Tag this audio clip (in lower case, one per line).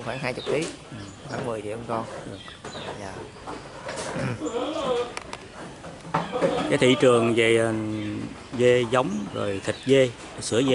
speech
animal
male speech